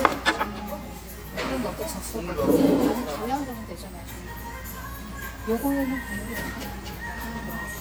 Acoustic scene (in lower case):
restaurant